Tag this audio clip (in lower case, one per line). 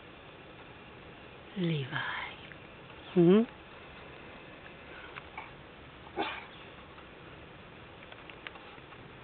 animal
speech
dog